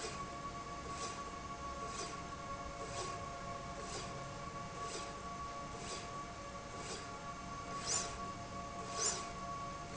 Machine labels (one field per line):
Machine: slide rail